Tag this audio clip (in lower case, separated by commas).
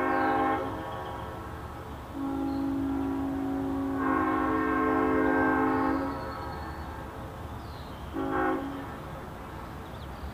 train horn